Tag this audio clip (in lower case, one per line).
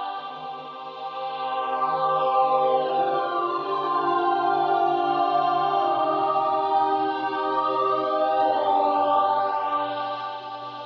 music